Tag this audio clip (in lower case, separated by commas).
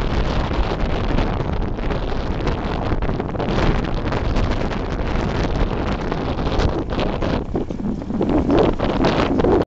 bicycle, vehicle